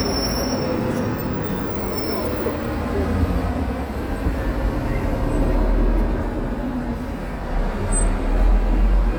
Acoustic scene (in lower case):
residential area